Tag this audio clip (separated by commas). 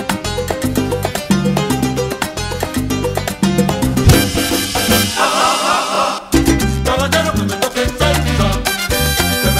Salsa music, Music, Ska